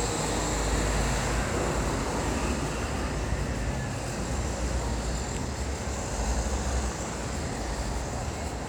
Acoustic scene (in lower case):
street